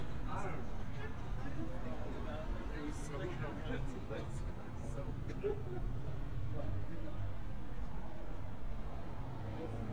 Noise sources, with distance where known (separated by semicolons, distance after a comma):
person or small group talking, near